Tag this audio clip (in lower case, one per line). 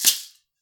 percussion
music
musical instrument
rattle (instrument)